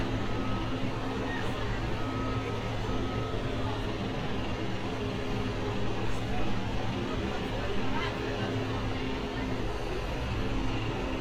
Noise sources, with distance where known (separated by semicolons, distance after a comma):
unidentified impact machinery, near; person or small group talking, far